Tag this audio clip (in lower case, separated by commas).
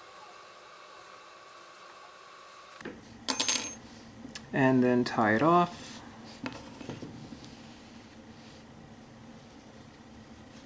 inside a small room, speech